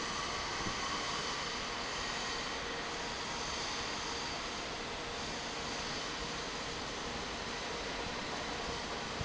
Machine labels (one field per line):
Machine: fan